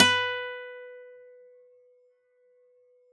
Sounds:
Musical instrument, Music, Acoustic guitar, Plucked string instrument, Guitar

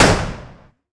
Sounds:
Gunshot, Explosion

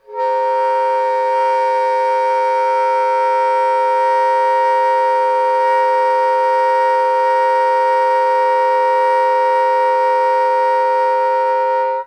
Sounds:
Musical instrument, Wind instrument, Music

